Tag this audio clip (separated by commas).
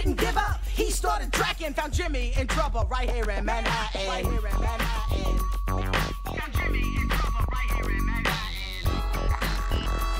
Music